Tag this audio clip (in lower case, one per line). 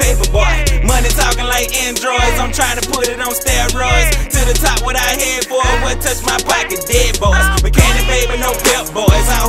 music
pop music
blues
exciting music